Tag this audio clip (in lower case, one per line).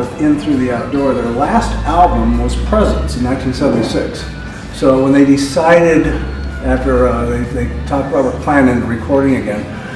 speech
music